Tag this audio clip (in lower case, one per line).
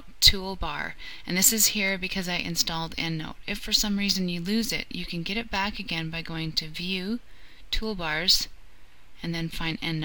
speech